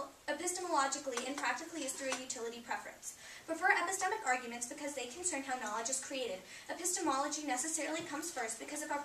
Woman giving a speech